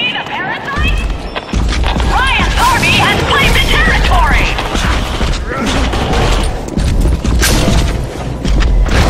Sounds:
Speech, Boom

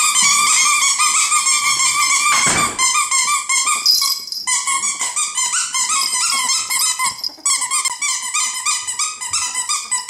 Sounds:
ferret dooking

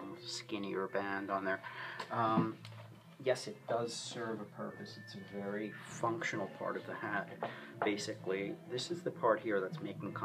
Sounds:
Speech, Music

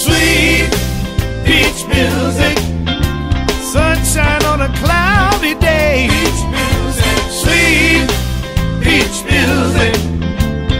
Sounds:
Music, Soundtrack music

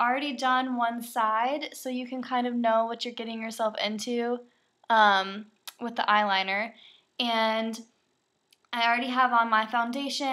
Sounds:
Speech

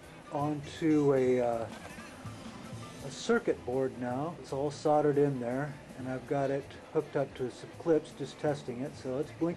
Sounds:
Speech, Music

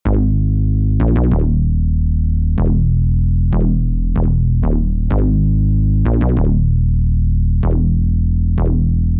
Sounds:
Electronic music, Hip hop music, Music, House music

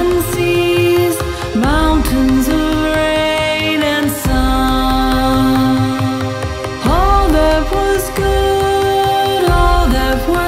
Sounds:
Music

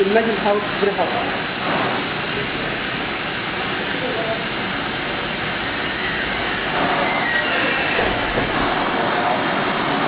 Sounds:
Speech

